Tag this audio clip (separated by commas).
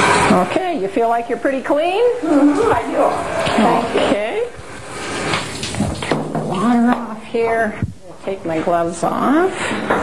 Speech